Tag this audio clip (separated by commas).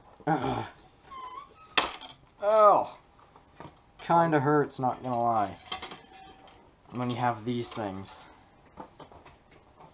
inside a small room, Speech